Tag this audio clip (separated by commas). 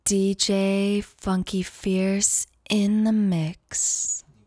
woman speaking, Human voice, Speech